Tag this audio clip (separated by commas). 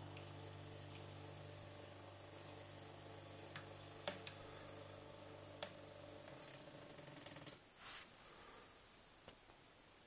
Silence